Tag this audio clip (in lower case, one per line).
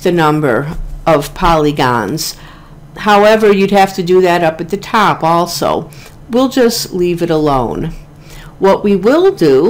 monologue